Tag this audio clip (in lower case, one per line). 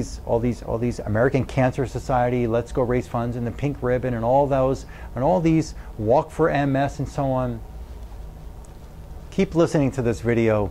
speech